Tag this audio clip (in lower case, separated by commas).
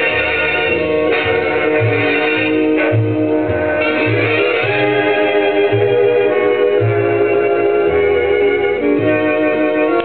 swing music, music